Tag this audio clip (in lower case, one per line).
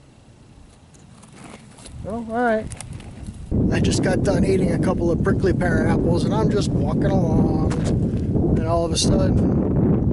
outside, rural or natural
speech